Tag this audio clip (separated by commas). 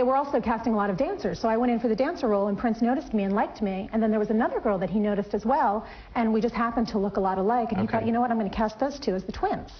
Speech, woman speaking